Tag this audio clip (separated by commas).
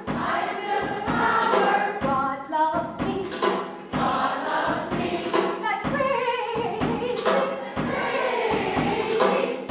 Music, Happy music